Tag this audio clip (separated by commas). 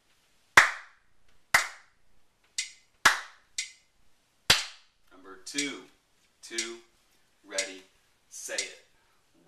Speech, inside a small room, Clapping